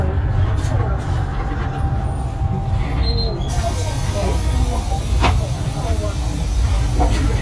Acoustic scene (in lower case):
bus